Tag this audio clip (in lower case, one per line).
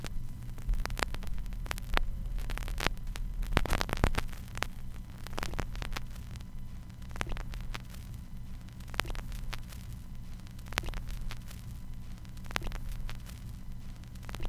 crackle